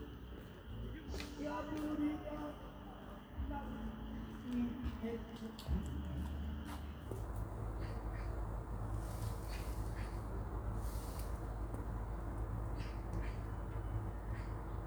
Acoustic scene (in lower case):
park